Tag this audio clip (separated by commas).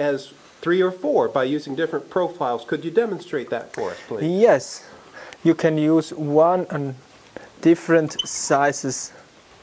Speech